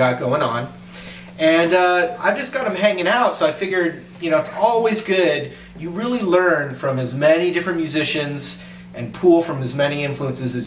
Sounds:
Speech

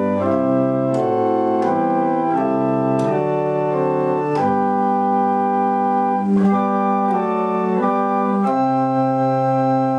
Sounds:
Hammond organ, Organ

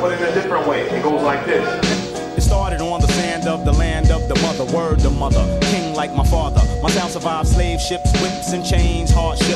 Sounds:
Music, Exciting music

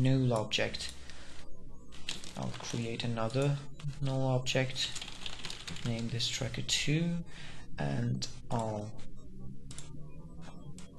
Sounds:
Typing

